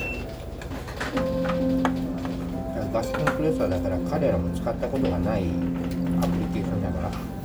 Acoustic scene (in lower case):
restaurant